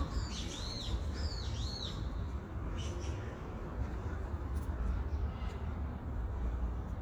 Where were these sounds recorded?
in a park